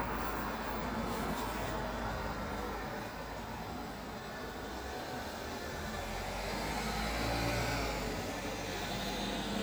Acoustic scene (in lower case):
street